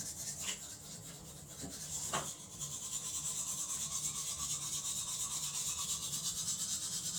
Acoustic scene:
restroom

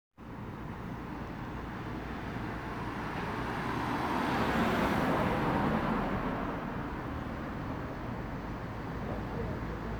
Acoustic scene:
residential area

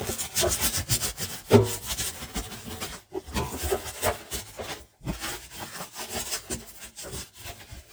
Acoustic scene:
kitchen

